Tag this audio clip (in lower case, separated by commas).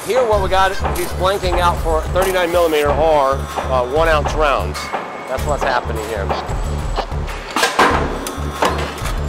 music, speech